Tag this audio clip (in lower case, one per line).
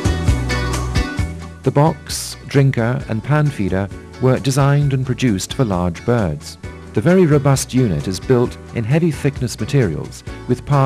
speech
music